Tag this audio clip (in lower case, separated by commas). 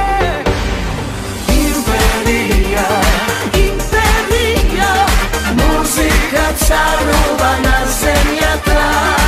inside a large room or hall, music